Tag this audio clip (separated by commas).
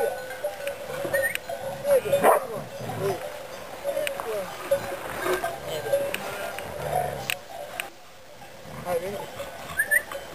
pets, Dog, Animal, Goat, Sheep, Speech